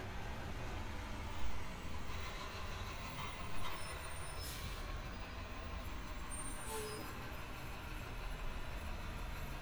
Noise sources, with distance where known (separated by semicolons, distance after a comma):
large-sounding engine